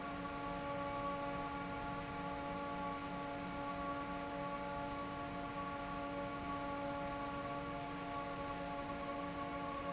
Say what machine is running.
fan